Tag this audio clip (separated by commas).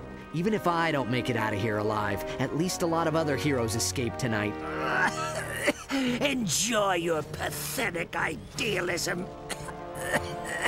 Speech, Music